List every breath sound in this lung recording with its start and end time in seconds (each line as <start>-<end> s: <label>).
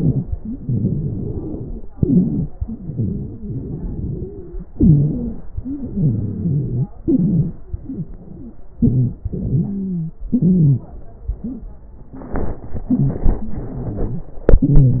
0.00-0.32 s: inhalation
0.00-0.32 s: wheeze
0.55-1.80 s: exhalation
0.56-1.78 s: wheeze
1.93-2.44 s: inhalation
1.93-2.44 s: wheeze
2.64-4.48 s: exhalation
2.64-4.48 s: wheeze
4.74-5.46 s: inhalation
4.74-5.46 s: wheeze
5.63-6.88 s: exhalation
5.63-6.88 s: wheeze
7.00-7.59 s: inhalation
7.00-7.59 s: wheeze
7.69-8.59 s: exhalation
7.69-8.59 s: wheeze
8.80-9.25 s: inhalation
8.80-9.25 s: wheeze
9.33-10.23 s: exhalation
9.33-10.23 s: wheeze
10.33-10.78 s: inhalation
10.33-10.78 s: wheeze
12.92-14.35 s: exhalation
12.92-14.35 s: wheeze
14.47-15.00 s: inhalation
14.47-15.00 s: wheeze